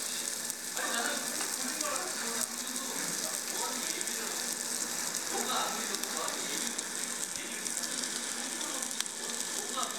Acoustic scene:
restaurant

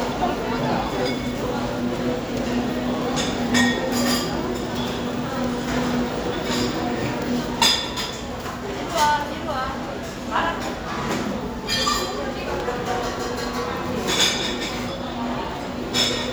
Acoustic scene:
crowded indoor space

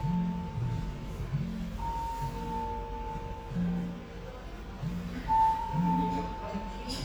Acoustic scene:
cafe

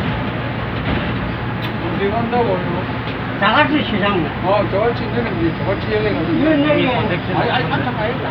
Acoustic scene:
subway train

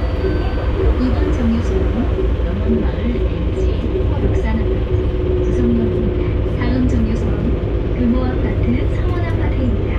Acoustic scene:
bus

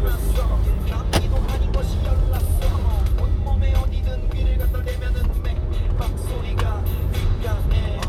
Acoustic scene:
car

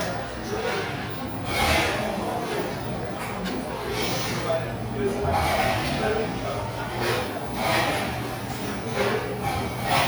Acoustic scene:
cafe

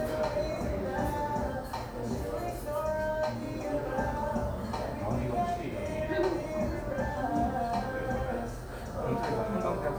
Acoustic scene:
cafe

